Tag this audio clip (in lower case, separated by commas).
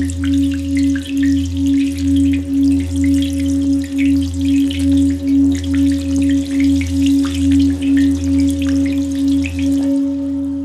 singing bowl